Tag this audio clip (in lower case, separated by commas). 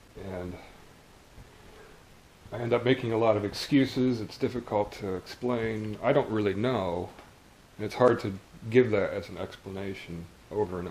speech